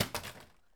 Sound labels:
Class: object falling